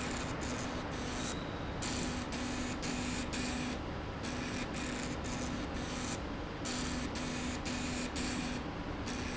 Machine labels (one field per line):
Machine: slide rail